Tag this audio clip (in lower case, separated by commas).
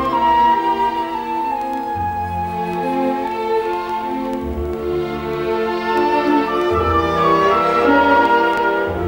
classical music, orchestra, music